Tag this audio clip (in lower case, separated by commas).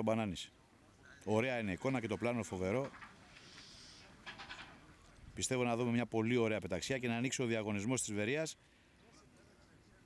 speech, outside, rural or natural